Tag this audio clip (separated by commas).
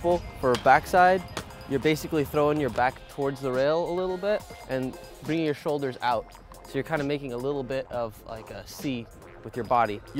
Music, Speech